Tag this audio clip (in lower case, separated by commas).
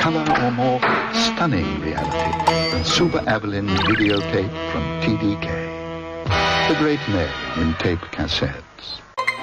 speech, music